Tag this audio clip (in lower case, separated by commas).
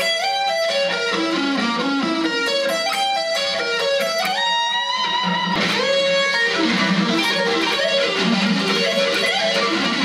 musical instrument, plucked string instrument, guitar, electric guitar, music